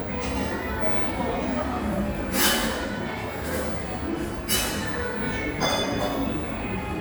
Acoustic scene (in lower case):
cafe